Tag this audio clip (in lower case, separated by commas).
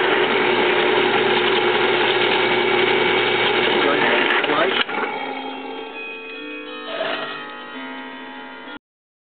speech